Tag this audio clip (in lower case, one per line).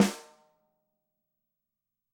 percussion
snare drum
music
drum
musical instrument